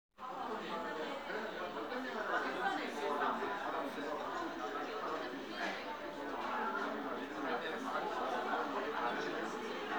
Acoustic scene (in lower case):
crowded indoor space